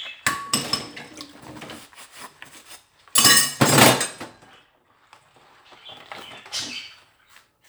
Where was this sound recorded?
in a kitchen